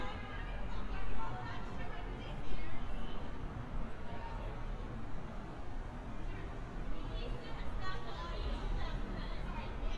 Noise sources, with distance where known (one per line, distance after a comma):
person or small group talking